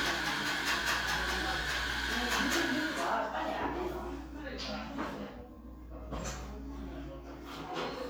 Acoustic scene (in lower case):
crowded indoor space